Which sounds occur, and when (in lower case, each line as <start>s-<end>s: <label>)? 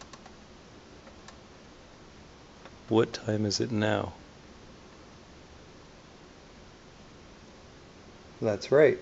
0.0s-0.3s: tick
0.0s-9.0s: mechanisms
0.9s-1.0s: tick
1.2s-1.3s: tick
2.6s-2.9s: tick
2.9s-4.1s: male speech
8.4s-9.0s: male speech